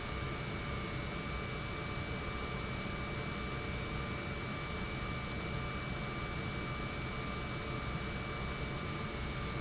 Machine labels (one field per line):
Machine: pump